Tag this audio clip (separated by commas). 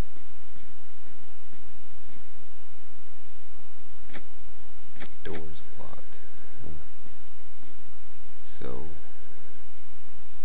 Speech